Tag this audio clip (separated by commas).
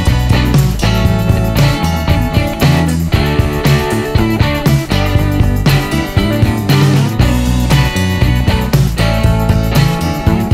Music, inside a small room